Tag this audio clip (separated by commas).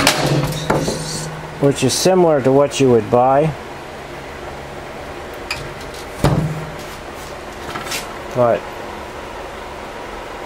Speech, inside a large room or hall